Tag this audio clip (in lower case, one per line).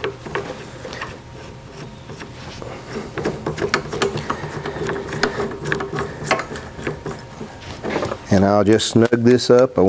speech
tools